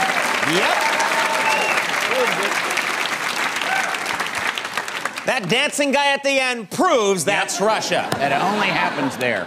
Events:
[0.00, 0.16] human voice
[0.00, 5.22] applause
[0.41, 0.79] male speech
[0.70, 1.68] whoop
[1.43, 1.82] whistling
[2.07, 2.49] male speech
[3.62, 3.88] whoop
[5.26, 8.05] male speech
[7.79, 9.45] laughter
[8.07, 8.16] generic impact sounds
[8.19, 9.44] male speech

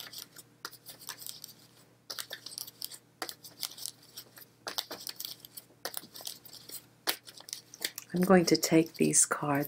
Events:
[0.00, 0.42] shuffling cards
[0.00, 9.65] background noise
[0.61, 1.77] shuffling cards
[2.09, 3.04] shuffling cards
[3.25, 4.48] shuffling cards
[4.70, 5.62] shuffling cards
[5.86, 6.89] shuffling cards
[7.07, 9.33] shuffling cards
[8.16, 9.65] woman speaking
[9.58, 9.65] shuffling cards

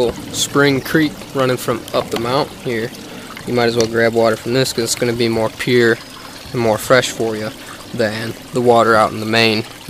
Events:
[0.00, 0.16] human voice
[0.00, 9.85] dribble
[0.00, 9.85] wind
[0.25, 1.07] male speech
[1.13, 1.20] tick
[1.26, 1.73] male speech
[1.78, 1.87] tick
[1.86, 2.39] male speech
[2.04, 2.17] tick
[2.60, 2.87] male speech
[2.96, 3.28] breathing
[3.32, 4.28] male speech
[3.70, 3.83] tick
[4.42, 5.40] male speech
[4.86, 4.99] tick
[5.53, 5.90] male speech
[5.72, 6.54] bird vocalization
[6.42, 7.02] male speech
[7.15, 7.46] male speech
[7.50, 7.80] breathing
[7.88, 8.29] male speech
[8.47, 9.57] male speech
[9.82, 9.85] male speech

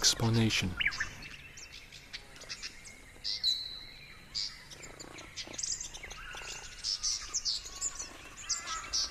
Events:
[0.00, 0.76] male speech
[2.20, 9.10] cricket
[4.67, 9.10] tweet
[7.10, 7.42] bird vocalization

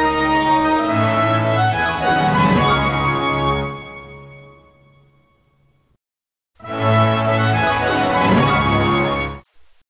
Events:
[0.00, 5.96] background noise
[0.00, 5.97] music
[6.56, 9.44] music
[6.57, 9.85] background noise

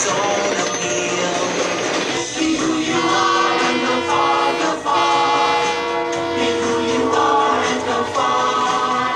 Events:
[0.00, 1.81] man speaking
[0.00, 9.15] music
[0.00, 9.15] train
[2.23, 5.65] choir
[2.96, 4.60] train horn
[4.84, 9.04] train horn
[6.27, 9.15] choir

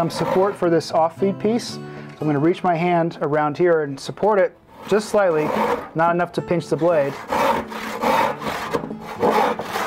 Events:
[0.00, 0.48] sawing
[0.00, 1.74] man speaking
[0.00, 9.85] music
[1.81, 2.13] breathing
[2.01, 2.21] generic impact sounds
[2.17, 4.47] man speaking
[4.77, 5.85] sawing
[4.83, 5.75] man speaking
[5.92, 7.08] man speaking
[6.01, 6.20] generic impact sounds
[6.73, 8.76] sawing
[8.71, 9.01] generic impact sounds
[9.02, 9.85] sawing

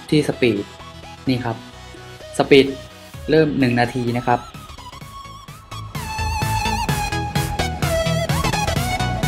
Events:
[0.00, 0.62] male speech
[0.00, 9.25] music
[1.23, 1.56] male speech
[2.31, 2.80] male speech
[3.25, 4.50] male speech

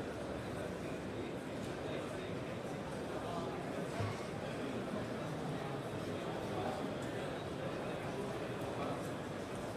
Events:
[0.00, 9.75] hubbub
[0.00, 9.75] mechanisms
[0.37, 0.90] man speaking
[1.50, 2.45] man speaking
[3.12, 7.30] man speaking
[7.62, 9.07] man speaking

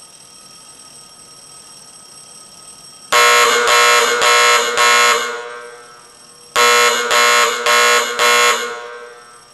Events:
[0.00, 9.53] mechanisms
[8.79, 8.80] alarm

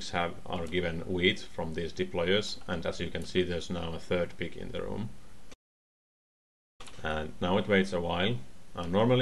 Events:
[0.00, 0.35] man speaking
[0.00, 5.53] mechanisms
[0.46, 1.39] man speaking
[0.48, 0.75] clicking
[1.55, 2.48] man speaking
[2.53, 2.67] clicking
[2.64, 4.25] man speaking
[3.16, 3.27] clicking
[4.25, 4.38] clicking
[4.38, 5.10] man speaking
[6.78, 7.01] generic impact sounds
[6.79, 9.21] mechanisms
[7.02, 7.28] man speaking
[7.41, 8.36] man speaking
[8.68, 9.21] man speaking
[8.78, 8.88] clicking

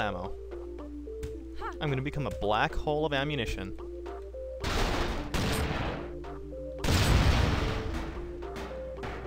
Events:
[0.00, 0.32] man speaking
[0.00, 9.25] music
[0.00, 9.25] video game sound
[1.19, 1.37] sound effect
[1.55, 1.77] human voice
[1.66, 1.77] sound effect
[1.79, 3.69] man speaking
[4.58, 5.30] sound effect
[5.30, 6.14] gunfire
[6.83, 8.05] gunfire
[7.88, 8.25] sound effect
[8.43, 8.81] sound effect
[8.99, 9.25] sound effect

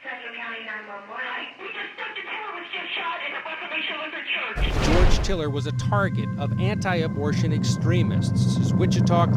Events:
[0.03, 1.52] woman speaking
[1.66, 2.64] woman speaking
[2.64, 4.54] woman speaking
[4.56, 5.33] sound effect
[5.31, 9.35] male speech

